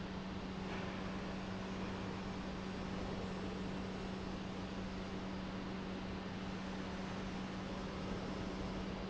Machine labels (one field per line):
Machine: pump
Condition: normal